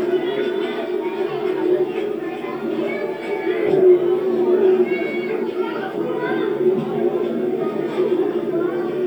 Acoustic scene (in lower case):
park